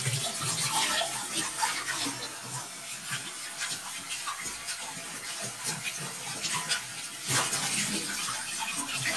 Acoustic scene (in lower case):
kitchen